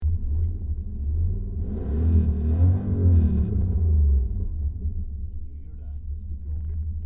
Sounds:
Vehicle, Car, Motor vehicle (road), Engine

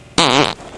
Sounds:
Fart

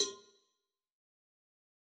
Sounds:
Cowbell, Bell

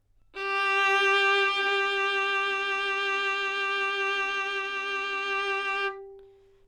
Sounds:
Bowed string instrument, Musical instrument, Music

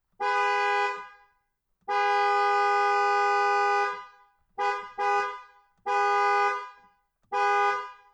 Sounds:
Vehicle, Alarm, car horn, Car, Motor vehicle (road)

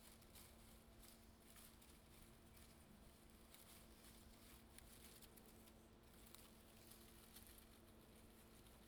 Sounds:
Wind

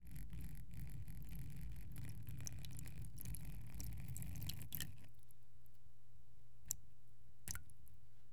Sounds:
Liquid

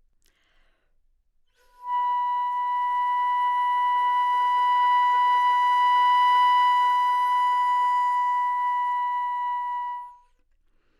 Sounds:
Musical instrument, Music, Wind instrument

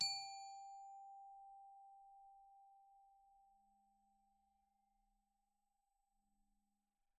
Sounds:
Percussion, Glockenspiel, Musical instrument, Mallet percussion, Music

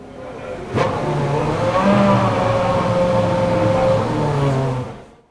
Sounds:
Engine, Vehicle, vroom, Car, Motor vehicle (road)

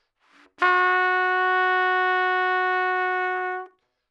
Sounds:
Musical instrument, Trumpet, Music, Brass instrument

